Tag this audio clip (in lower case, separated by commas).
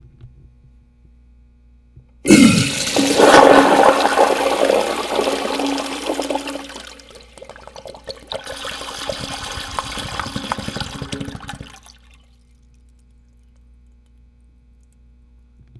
toilet flush, home sounds